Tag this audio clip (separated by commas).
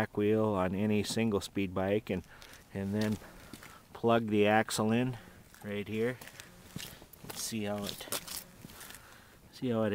Speech